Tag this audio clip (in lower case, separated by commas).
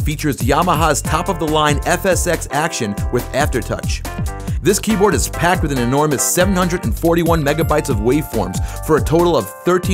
speech, music